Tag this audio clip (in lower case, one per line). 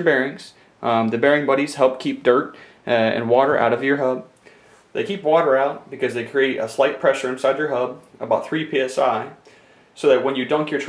speech